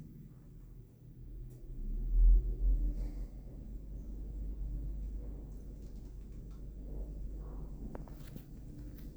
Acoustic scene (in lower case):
elevator